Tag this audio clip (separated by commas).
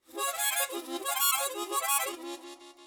Musical instrument, Music, Harmonica